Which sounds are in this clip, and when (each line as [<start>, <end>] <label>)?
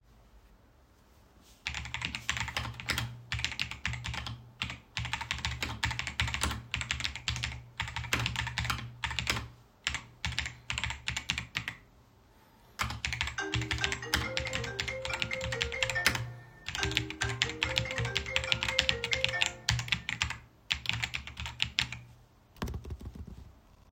[1.55, 22.17] keyboard typing
[13.38, 20.23] phone ringing